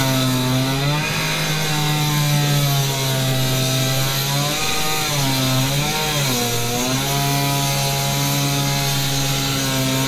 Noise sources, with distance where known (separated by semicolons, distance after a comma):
chainsaw, near